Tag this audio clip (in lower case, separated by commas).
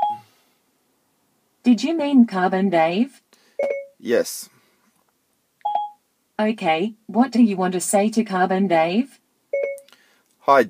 speech, radio